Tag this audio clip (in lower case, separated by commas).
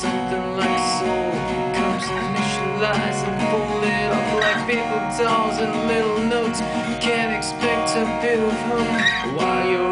music